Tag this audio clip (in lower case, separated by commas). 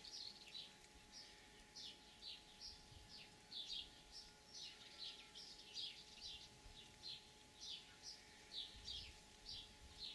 animal, outside, rural or natural